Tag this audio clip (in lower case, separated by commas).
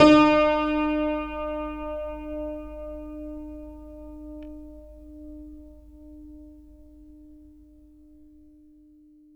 piano, keyboard (musical), musical instrument, music